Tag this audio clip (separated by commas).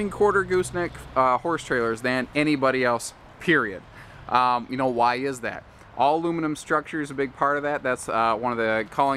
Speech